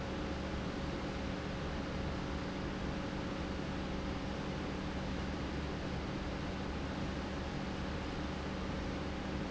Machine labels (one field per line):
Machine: pump